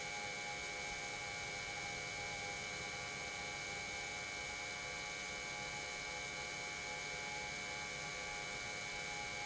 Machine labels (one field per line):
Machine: pump